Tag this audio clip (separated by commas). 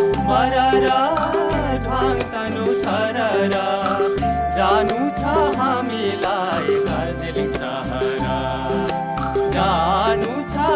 Music, Folk music, Singing